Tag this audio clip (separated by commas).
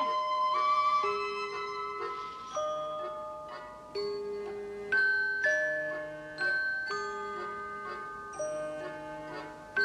Music